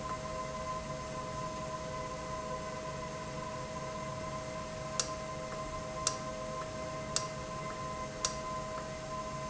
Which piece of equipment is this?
valve